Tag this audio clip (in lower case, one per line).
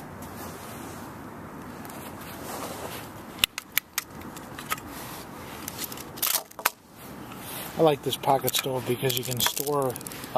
outside, rural or natural
speech